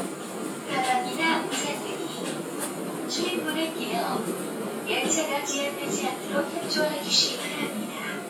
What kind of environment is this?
subway train